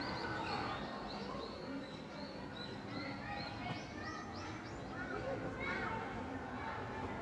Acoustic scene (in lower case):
park